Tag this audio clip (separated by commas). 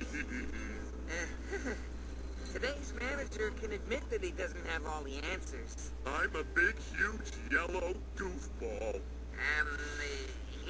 Speech